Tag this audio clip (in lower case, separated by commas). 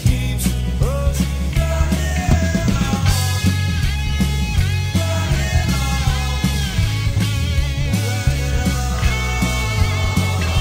psychedelic rock, rock music